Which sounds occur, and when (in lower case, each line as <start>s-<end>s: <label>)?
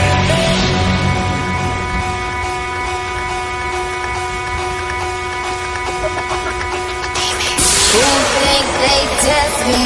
0.0s-9.8s: music
7.9s-9.8s: female singing